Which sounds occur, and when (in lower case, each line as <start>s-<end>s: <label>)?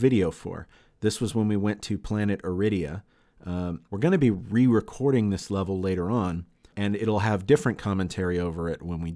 0.0s-0.6s: male speech
0.0s-9.1s: background noise
1.0s-2.9s: male speech
3.5s-3.8s: male speech
3.9s-6.5s: male speech
6.6s-9.1s: male speech